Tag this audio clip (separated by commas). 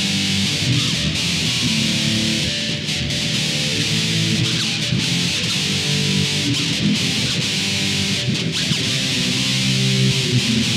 playing bass guitar